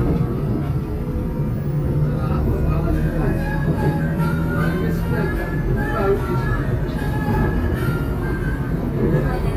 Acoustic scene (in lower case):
subway train